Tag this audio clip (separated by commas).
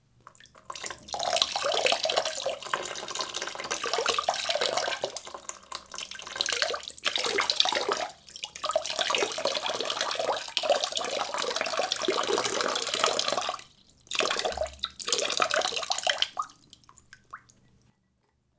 Bathtub (filling or washing), Liquid, home sounds, dribble, Drip, Pour